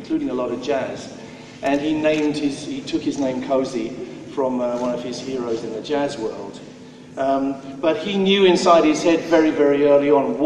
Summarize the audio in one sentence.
Male speaking about another male